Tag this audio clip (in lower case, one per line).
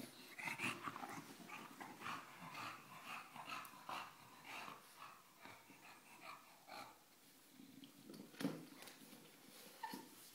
animal
dog